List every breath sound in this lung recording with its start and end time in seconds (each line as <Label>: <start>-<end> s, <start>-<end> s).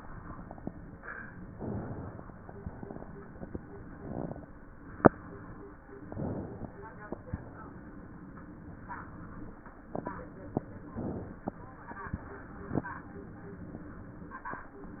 Inhalation: 1.48-2.66 s, 6.04-7.30 s, 10.93-12.19 s
Exhalation: 2.66-3.50 s, 7.30-8.35 s, 12.19-13.30 s